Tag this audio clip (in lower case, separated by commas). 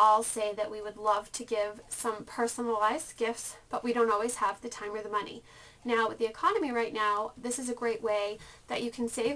speech